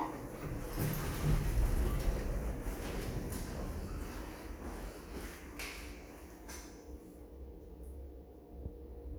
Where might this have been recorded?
in an elevator